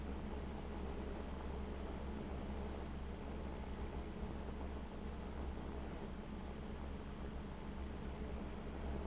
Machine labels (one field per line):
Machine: fan